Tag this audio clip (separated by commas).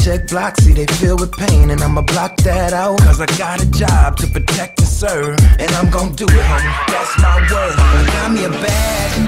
Exciting music, Music